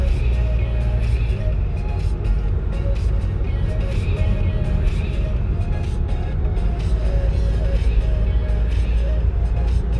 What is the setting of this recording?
car